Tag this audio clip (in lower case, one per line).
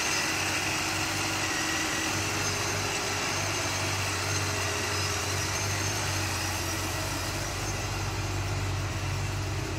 vehicle
engine
car